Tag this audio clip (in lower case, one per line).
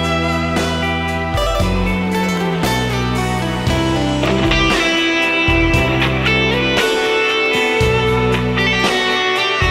music